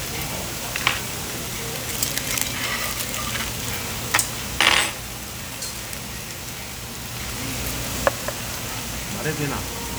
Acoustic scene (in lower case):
restaurant